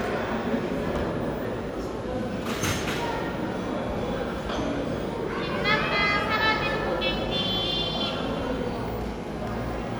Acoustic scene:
cafe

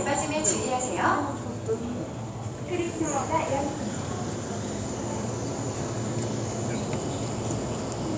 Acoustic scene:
subway station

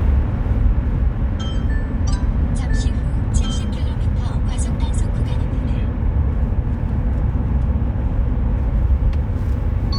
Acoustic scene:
car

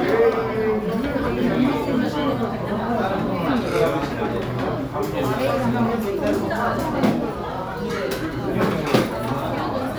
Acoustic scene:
restaurant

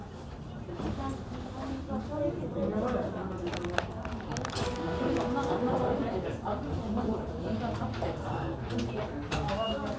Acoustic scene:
crowded indoor space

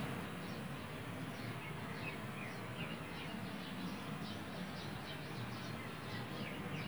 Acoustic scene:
park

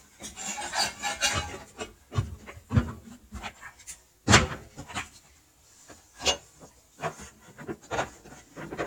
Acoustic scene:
kitchen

